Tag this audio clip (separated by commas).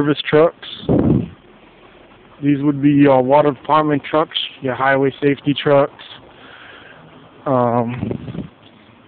Speech